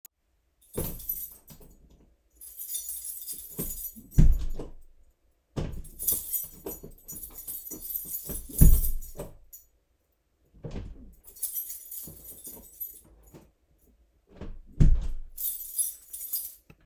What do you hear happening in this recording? Going out, taking out my keys and opening the door